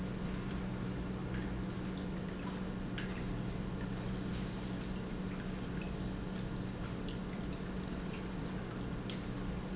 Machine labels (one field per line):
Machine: pump